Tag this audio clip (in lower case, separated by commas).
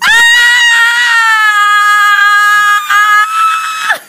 screaming, human voice